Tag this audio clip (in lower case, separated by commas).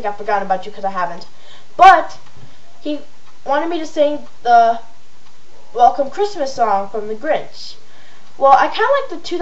speech